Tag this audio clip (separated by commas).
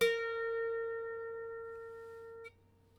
Music, Musical instrument, Harp